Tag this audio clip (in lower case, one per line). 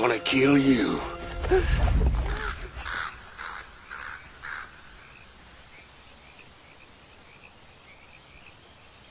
environmental noise